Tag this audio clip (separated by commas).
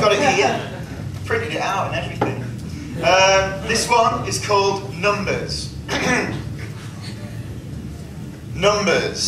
Speech, Male speech